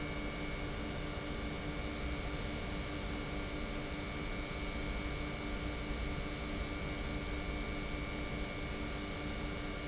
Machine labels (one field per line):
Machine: pump